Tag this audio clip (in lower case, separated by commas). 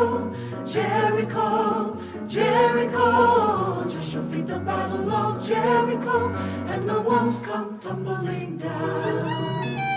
harmonic, music